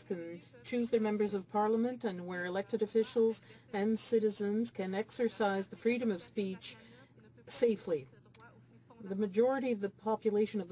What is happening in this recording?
An adult female is speaking, and another adult female is speaking in the background